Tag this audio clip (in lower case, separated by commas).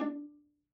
music, bowed string instrument, musical instrument